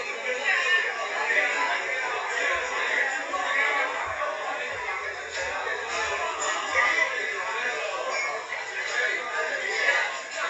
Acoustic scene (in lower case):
crowded indoor space